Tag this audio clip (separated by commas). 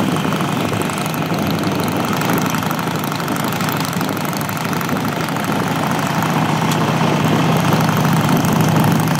Motorcycle, Vehicle, outside, rural or natural